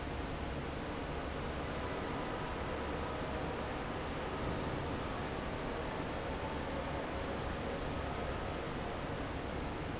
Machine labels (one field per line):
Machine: fan